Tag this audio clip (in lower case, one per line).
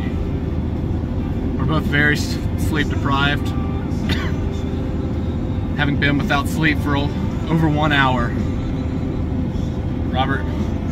speech